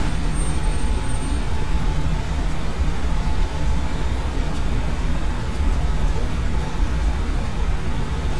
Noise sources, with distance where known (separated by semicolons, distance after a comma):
engine of unclear size, near